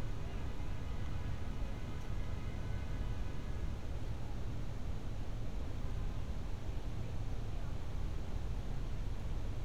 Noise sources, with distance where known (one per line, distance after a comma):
car horn, far